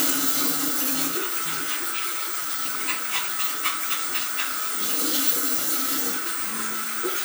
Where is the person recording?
in a restroom